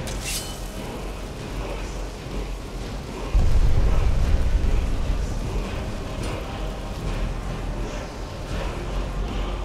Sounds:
Music

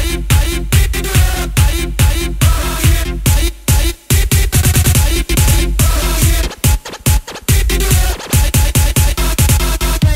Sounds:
Dance music, Music

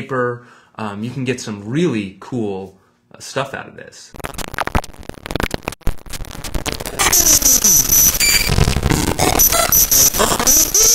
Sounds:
Speech, Noise

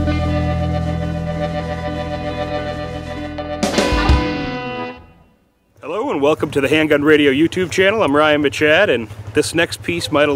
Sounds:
Music, Speech

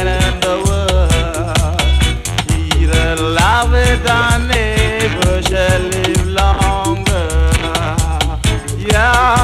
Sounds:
Music

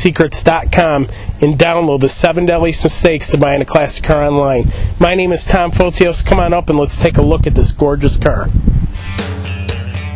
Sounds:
Speech

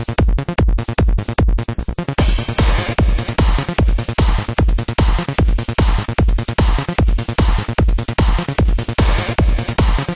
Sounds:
Music

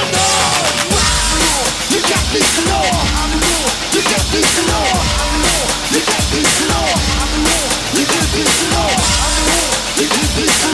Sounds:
Singing, Music

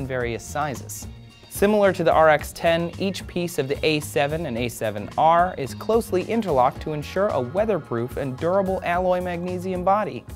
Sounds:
Speech, Music

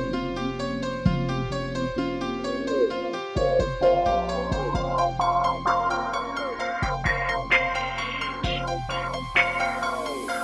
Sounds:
Synthesizer

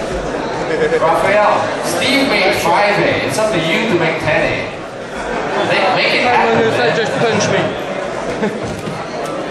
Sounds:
Speech, inside a public space

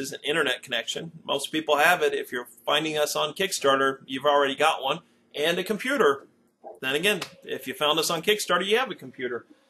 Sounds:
Speech

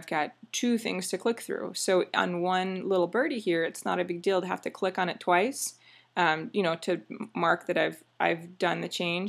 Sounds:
Speech

